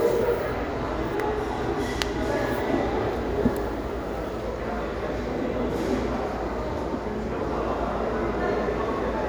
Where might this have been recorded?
in a restaurant